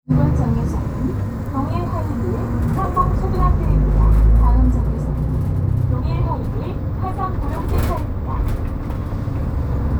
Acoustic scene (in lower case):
bus